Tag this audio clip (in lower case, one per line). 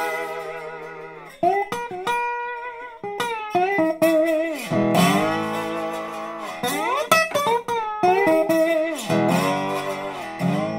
slide guitar